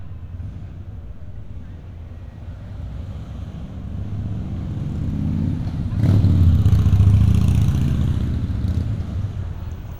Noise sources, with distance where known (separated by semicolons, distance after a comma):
medium-sounding engine, near